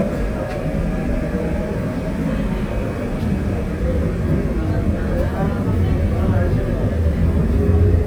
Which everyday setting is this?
subway train